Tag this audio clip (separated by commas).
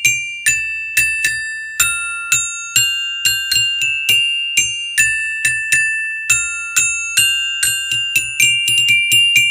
playing glockenspiel